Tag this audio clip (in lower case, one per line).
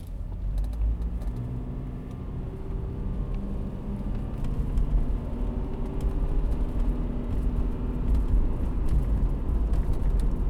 accelerating
engine